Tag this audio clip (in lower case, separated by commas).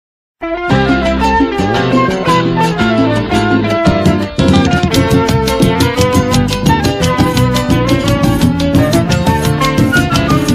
music